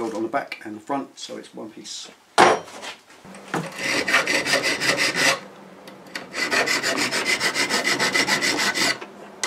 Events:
[0.00, 0.45] male speech
[0.00, 9.45] mechanisms
[0.45, 0.55] tick
[0.59, 2.14] male speech
[2.33, 2.58] generic impact sounds
[2.56, 2.91] scrape
[3.05, 3.21] scrape
[3.25, 3.39] generic impact sounds
[3.65, 5.36] filing (rasp)
[5.82, 5.92] generic impact sounds
[6.08, 6.19] generic impact sounds
[6.30, 8.97] filing (rasp)
[8.99, 9.06] generic impact sounds
[9.38, 9.45] generic impact sounds

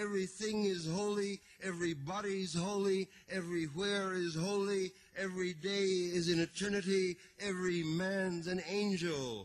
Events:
[0.00, 1.32] man speaking
[0.00, 9.44] background noise
[1.30, 1.54] breathing
[1.56, 3.00] man speaking
[3.02, 3.25] breathing
[3.25, 4.86] man speaking
[4.87, 5.10] breathing
[5.12, 7.10] man speaking
[7.12, 7.34] breathing
[7.34, 9.44] man speaking

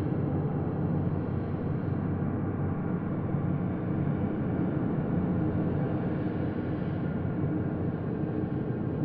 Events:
[0.00, 9.04] noise

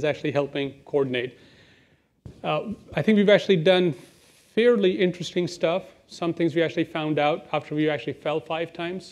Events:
[0.00, 0.72] man speaking
[0.00, 9.11] background noise
[0.87, 1.22] man speaking
[2.27, 2.73] man speaking
[2.88, 3.95] man speaking
[4.52, 5.84] man speaking
[6.19, 9.11] man speaking

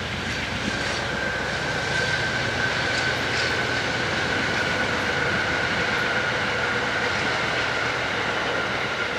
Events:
[0.00, 1.39] wind noise (microphone)
[0.00, 9.15] mechanisms
[0.00, 9.15] wind

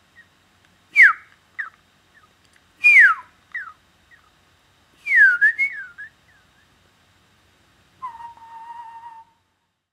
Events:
[0.00, 9.82] mechanisms
[0.07, 0.25] whistling
[0.56, 0.68] tick
[0.85, 1.19] whistling
[1.23, 1.34] human sounds
[1.50, 1.66] human sounds
[1.52, 1.71] whistling
[2.06, 2.25] whistling
[2.37, 2.56] human sounds
[2.73, 3.39] mechanisms
[2.77, 3.21] whistling
[3.14, 3.27] human sounds
[3.44, 3.58] human sounds
[3.50, 3.70] whistling
[4.04, 4.22] whistling
[5.00, 6.07] whistling
[6.23, 6.62] whistling
[6.90, 7.08] human sounds
[7.95, 9.33] whistling
[8.29, 8.41] human sounds

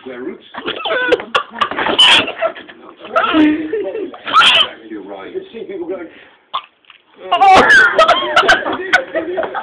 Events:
[0.00, 0.46] man speaking
[0.00, 9.62] background noise
[0.00, 9.62] conversation
[0.53, 1.25] animal
[0.67, 1.97] laughter
[1.09, 1.34] man speaking
[1.51, 1.74] female speech
[1.99, 2.35] animal
[2.27, 2.76] laughter
[2.73, 3.65] man speaking
[4.11, 6.18] man speaking
[4.28, 4.71] animal
[6.55, 6.70] animal
[7.26, 9.62] man speaking
[7.58, 8.02] animal
[7.95, 9.62] laughter

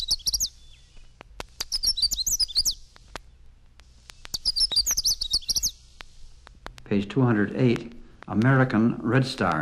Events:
[0.00, 1.11] tweet
[0.00, 9.61] background noise
[1.56, 2.83] tweet
[3.23, 3.45] tweet
[4.28, 5.81] tweet
[6.89, 7.90] man speaking
[8.27, 9.61] man speaking

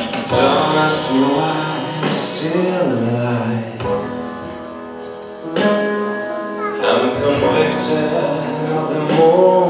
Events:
[0.01, 9.65] music
[0.17, 4.10] man speaking
[6.69, 9.65] man speaking

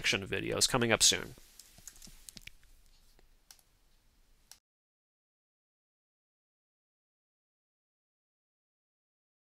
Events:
[0.00, 1.33] male speech
[0.00, 4.59] background noise
[1.34, 1.48] tap
[1.58, 2.10] computer keyboard
[2.26, 2.70] computer keyboard
[2.89, 3.17] surface contact
[3.16, 3.26] clicking
[3.48, 3.58] clicking
[4.48, 4.59] clicking

